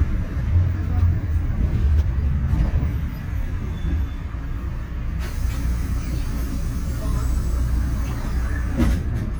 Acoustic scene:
bus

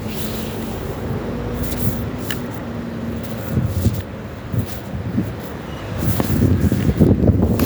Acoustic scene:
residential area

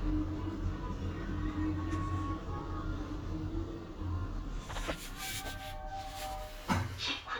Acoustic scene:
elevator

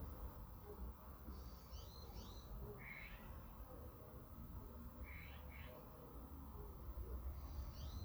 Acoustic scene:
park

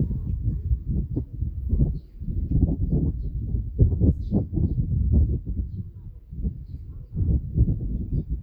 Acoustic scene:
park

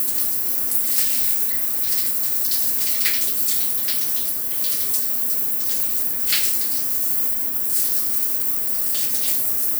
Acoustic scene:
restroom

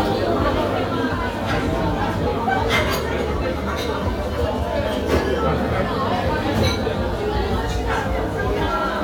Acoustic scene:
restaurant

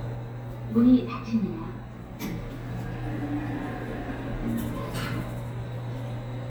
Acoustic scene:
elevator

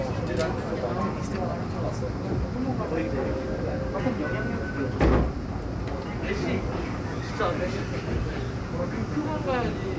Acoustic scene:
subway train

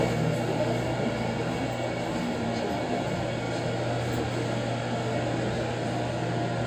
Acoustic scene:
subway train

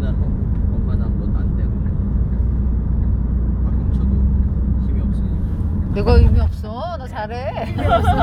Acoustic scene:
car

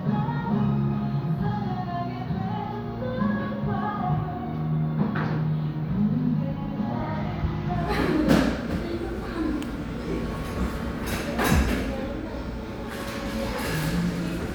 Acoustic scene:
cafe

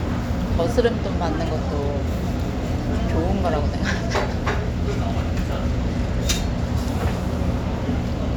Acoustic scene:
restaurant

